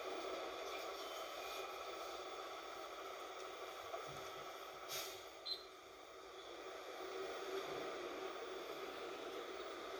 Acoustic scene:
bus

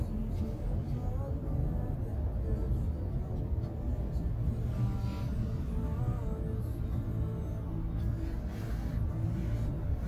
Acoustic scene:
car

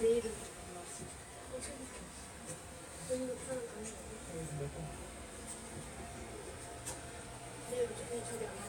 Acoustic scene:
subway train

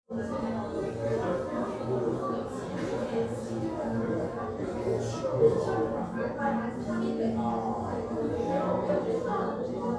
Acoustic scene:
crowded indoor space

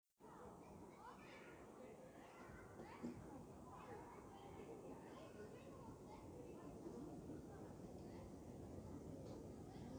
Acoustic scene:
park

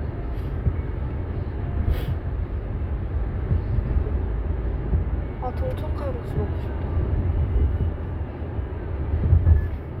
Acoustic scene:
car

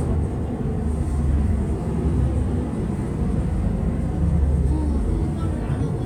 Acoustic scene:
bus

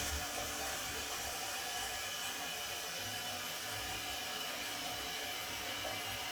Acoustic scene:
restroom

